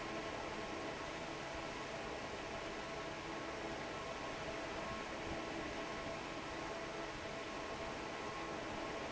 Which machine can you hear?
fan